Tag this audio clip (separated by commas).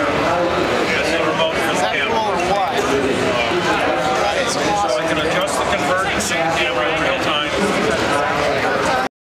Speech